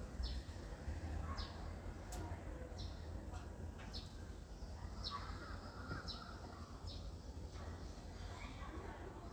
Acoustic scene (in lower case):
residential area